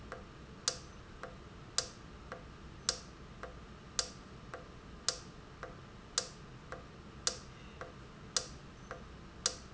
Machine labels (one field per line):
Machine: valve